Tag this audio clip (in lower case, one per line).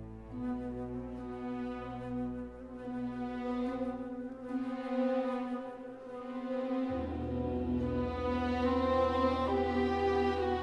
cello
music